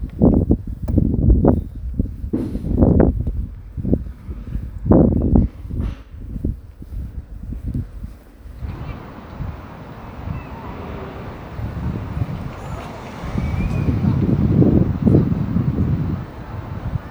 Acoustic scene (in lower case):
residential area